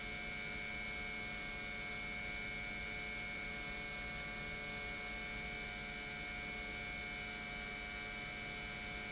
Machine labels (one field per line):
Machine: pump